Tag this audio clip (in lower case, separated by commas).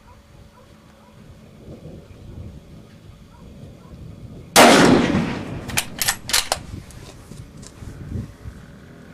silence, outside, rural or natural